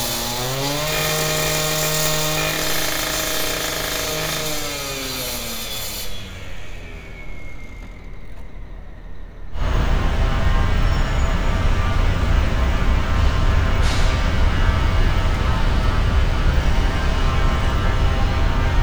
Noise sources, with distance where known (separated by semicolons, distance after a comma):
large rotating saw